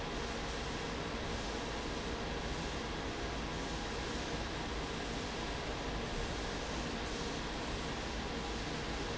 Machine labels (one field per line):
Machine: fan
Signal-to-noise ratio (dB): -6 dB